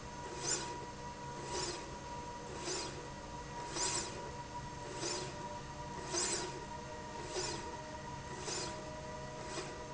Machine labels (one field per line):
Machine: slide rail